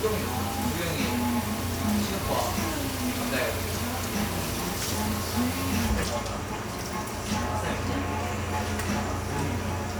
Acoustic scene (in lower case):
cafe